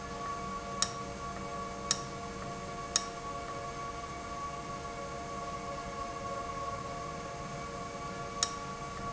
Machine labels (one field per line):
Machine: valve